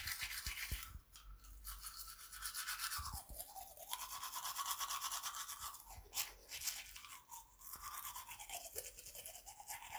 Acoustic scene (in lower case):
restroom